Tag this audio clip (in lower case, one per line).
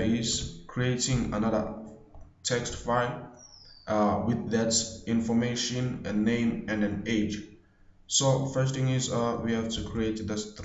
speech